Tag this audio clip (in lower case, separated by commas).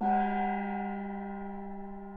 music, percussion, gong, musical instrument